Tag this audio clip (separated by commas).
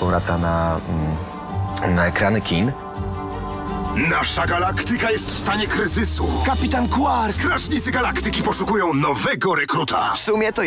Speech, Music